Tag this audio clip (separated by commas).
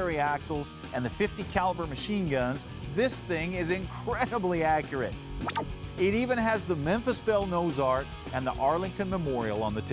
Speech, Music